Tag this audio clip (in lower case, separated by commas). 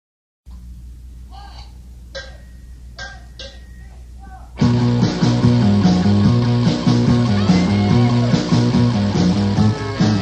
psychedelic rock, music, speech, rock music